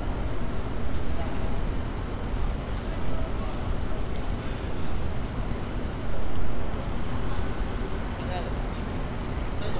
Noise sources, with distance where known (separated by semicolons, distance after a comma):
unidentified human voice